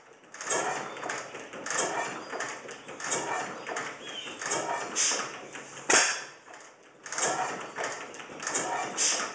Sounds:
Idling, Engine, Medium engine (mid frequency)

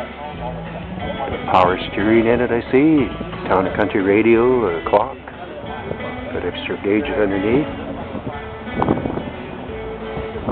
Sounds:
Music, Speech

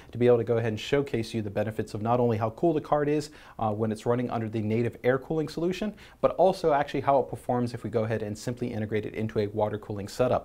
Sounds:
Speech

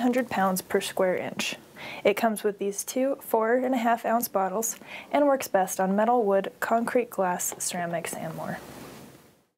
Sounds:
Speech

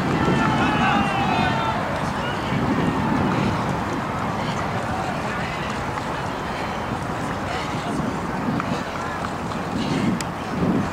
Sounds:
Speech, outside, rural or natural

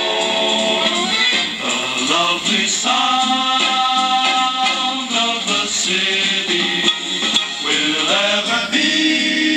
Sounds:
Music, Radio

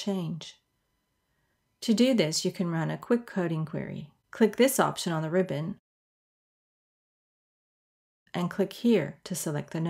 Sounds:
Speech

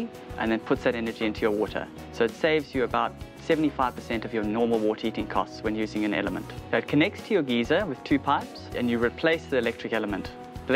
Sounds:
Music, Speech

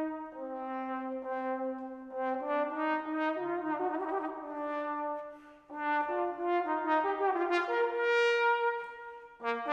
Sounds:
playing trombone

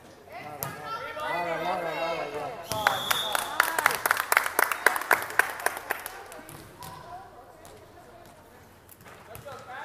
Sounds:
playing volleyball

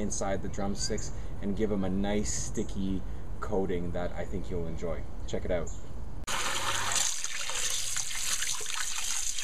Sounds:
Speech, Water

